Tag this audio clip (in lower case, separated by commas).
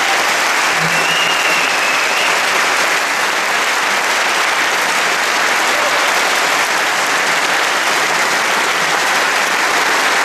applause, people clapping